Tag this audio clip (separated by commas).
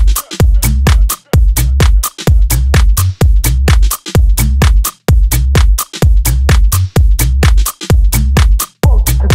Funk, Music